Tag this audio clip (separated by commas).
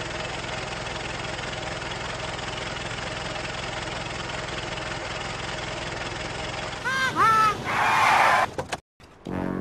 Car, Music, Motor vehicle (road), Vehicle